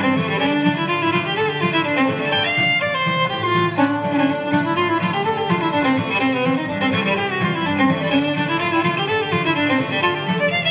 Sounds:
violin
musical instrument
music

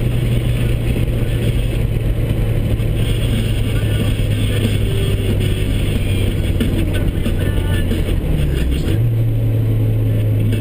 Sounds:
music

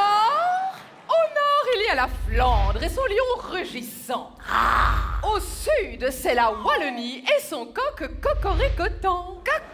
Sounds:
speech

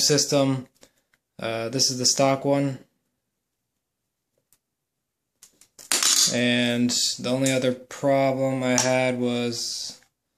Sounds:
speech

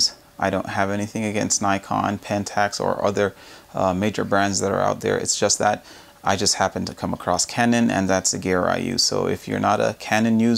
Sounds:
speech

